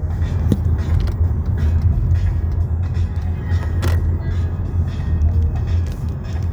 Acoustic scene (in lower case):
car